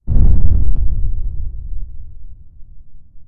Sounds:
Explosion, Boom

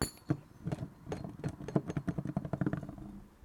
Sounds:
Thump

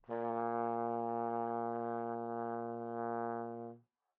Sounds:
Musical instrument, Music, Brass instrument

